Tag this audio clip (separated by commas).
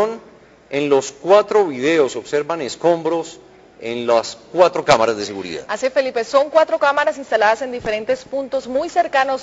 Speech